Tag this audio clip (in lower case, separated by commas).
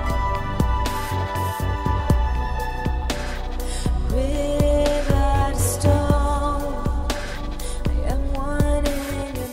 soul music, music